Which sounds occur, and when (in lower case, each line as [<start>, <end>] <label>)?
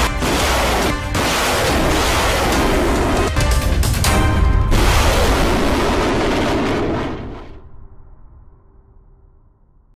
[0.00, 0.95] artillery fire
[0.00, 9.95] music
[1.11, 3.46] artillery fire
[4.67, 7.69] artillery fire